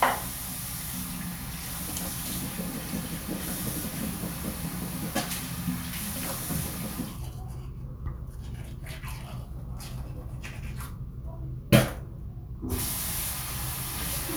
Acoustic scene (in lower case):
restroom